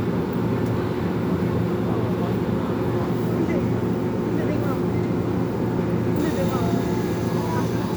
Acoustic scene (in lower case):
subway train